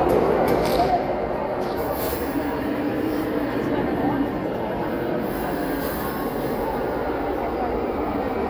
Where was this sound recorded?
in a crowded indoor space